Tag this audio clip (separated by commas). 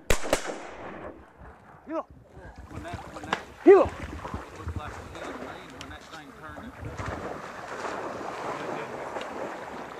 gunfire